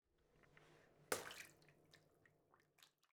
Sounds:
Splash, Water, Liquid, Bathtub (filling or washing), home sounds

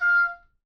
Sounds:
Musical instrument, Music, Wind instrument

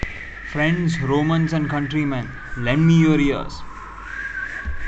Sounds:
Speech, Human voice

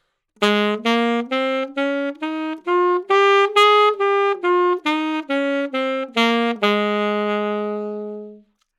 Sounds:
Music, Musical instrument, Wind instrument

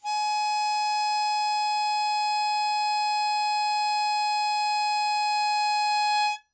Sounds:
Music, Musical instrument, Harmonica

